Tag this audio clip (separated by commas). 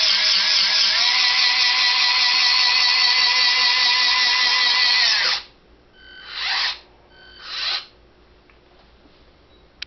Vehicle